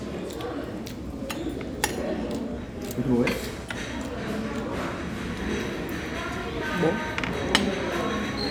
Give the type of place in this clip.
restaurant